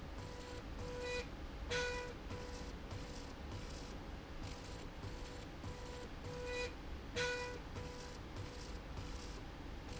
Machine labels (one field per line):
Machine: slide rail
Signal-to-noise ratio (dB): 6 dB